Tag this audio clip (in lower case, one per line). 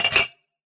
glass
chink